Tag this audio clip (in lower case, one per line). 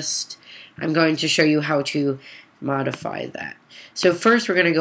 speech